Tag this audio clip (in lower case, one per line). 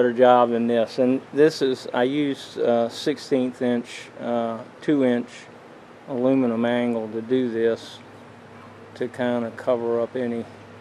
speech